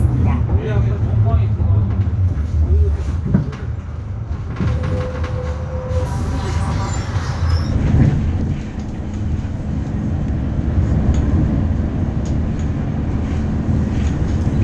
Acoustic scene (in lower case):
bus